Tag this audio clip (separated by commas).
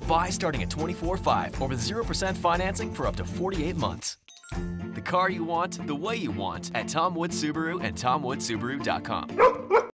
Music, Speech